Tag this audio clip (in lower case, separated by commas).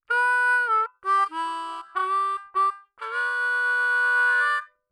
musical instrument, harmonica, music